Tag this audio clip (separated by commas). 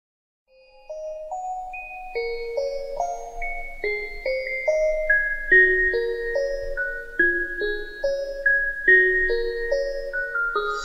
Glockenspiel, xylophone, Mallet percussion